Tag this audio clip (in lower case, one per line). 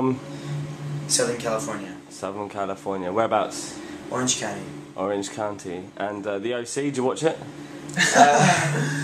speech